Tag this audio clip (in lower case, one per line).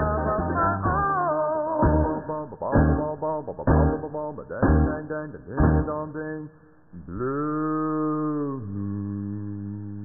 music